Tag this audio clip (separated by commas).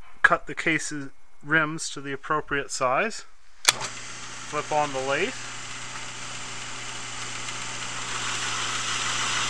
Speech